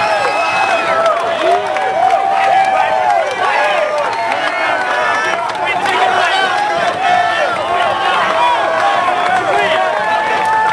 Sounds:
speech

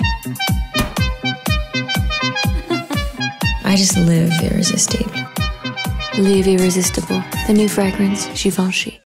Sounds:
music
speech

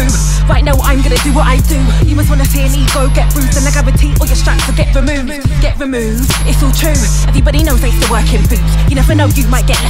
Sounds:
music

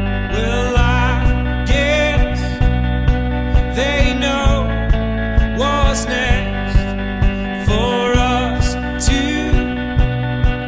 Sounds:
music
country

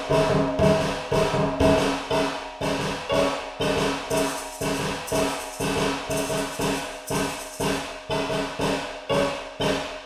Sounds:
music
soundtrack music

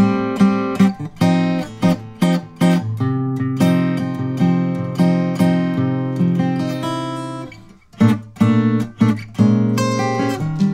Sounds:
music

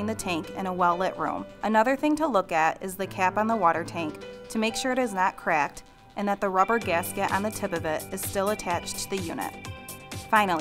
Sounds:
speech
music

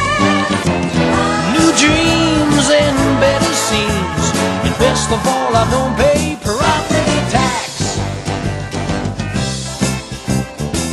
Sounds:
music

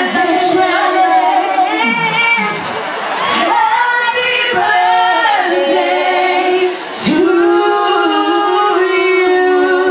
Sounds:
female singing

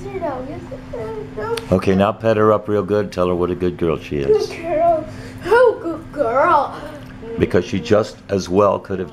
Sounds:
speech

